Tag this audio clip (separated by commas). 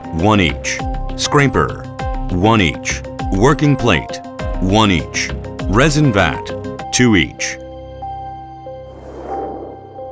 Music, Speech